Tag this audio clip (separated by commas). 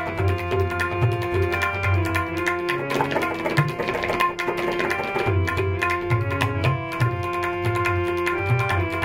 playing tabla